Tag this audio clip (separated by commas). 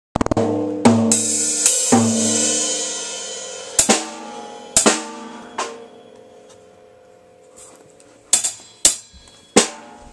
Rimshot, Drum, Snare drum, Hi-hat, Drum kit, Cymbal, Percussion, Bass drum